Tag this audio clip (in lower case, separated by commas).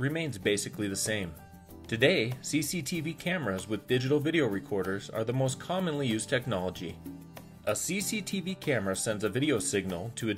speech, music